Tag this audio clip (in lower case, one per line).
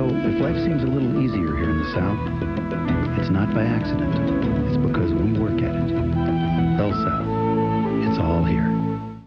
music
speech